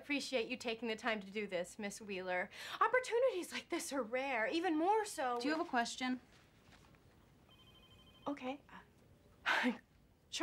Two adult females are speaking